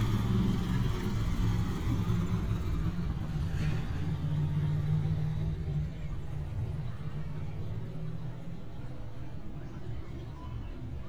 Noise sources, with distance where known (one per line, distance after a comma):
engine of unclear size, near